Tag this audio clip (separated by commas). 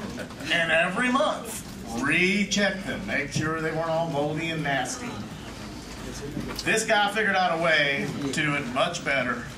Speech